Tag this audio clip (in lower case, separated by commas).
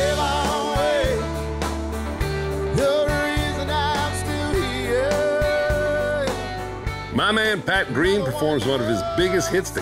speech, music